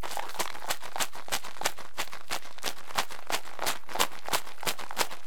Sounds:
rattle (instrument)
percussion
musical instrument
music

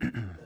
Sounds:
respiratory sounds
cough

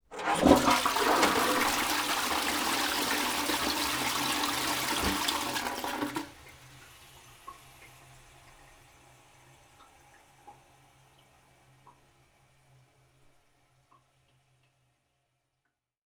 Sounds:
toilet flush
domestic sounds

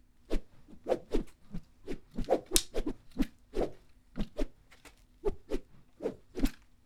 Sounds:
whoosh

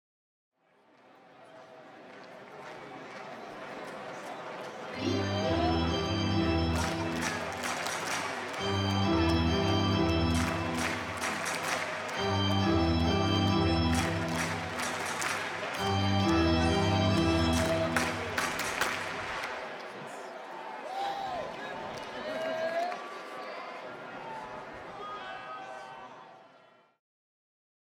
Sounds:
organ
music
keyboard (musical)
musical instrument

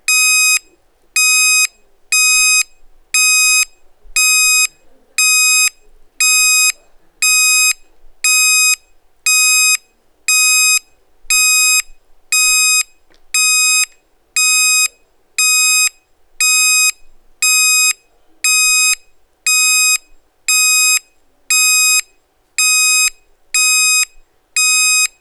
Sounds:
alarm

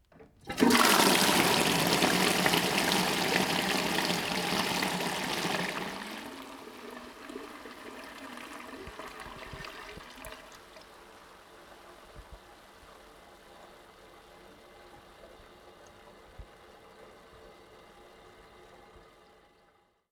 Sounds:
domestic sounds
toilet flush

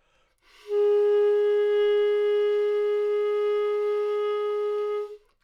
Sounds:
woodwind instrument
musical instrument
music

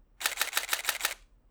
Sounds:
camera
mechanisms

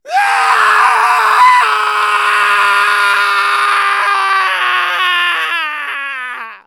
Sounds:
human voice
screaming

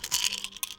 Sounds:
rattle

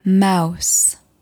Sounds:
speech
human voice
female speech

